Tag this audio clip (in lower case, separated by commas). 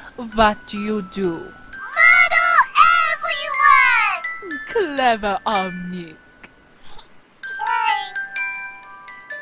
speech, music